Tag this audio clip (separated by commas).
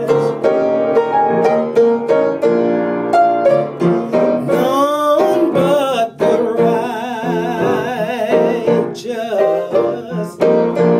Music